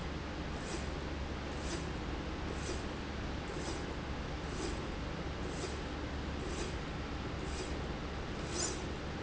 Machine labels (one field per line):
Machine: slide rail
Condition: normal